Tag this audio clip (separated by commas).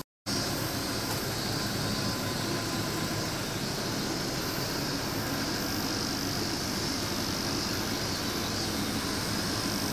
air conditioning noise